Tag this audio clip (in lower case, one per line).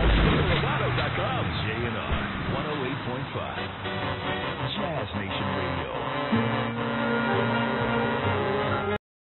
speech
music